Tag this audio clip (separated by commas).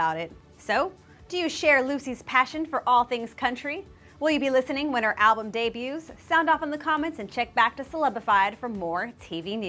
Music, Speech